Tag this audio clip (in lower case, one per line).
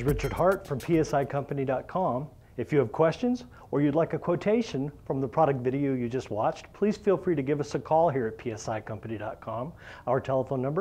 speech